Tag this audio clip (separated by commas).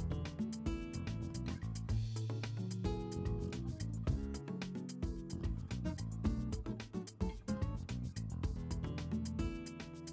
Music